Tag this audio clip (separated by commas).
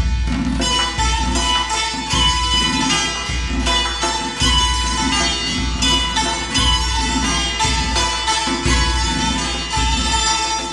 Pizzicato, Zither